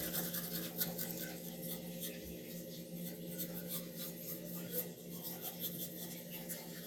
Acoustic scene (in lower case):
restroom